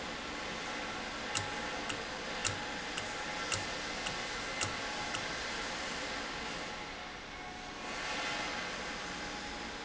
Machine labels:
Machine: valve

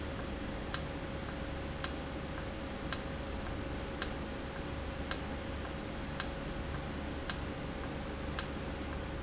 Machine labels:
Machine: valve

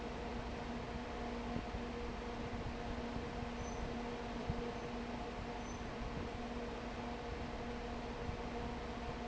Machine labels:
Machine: fan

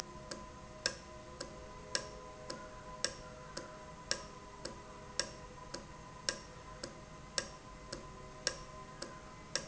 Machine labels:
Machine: valve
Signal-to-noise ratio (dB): 6 dB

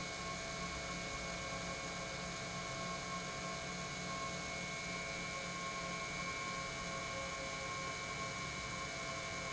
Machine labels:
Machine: pump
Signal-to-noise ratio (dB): 0 dB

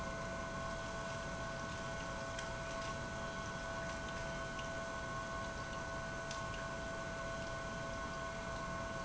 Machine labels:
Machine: pump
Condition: abnormal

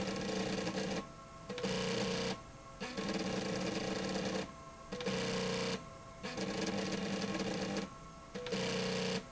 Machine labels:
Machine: slide rail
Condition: abnormal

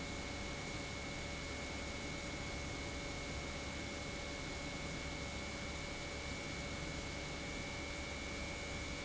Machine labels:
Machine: pump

